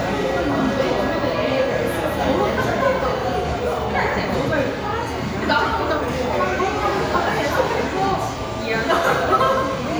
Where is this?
in a crowded indoor space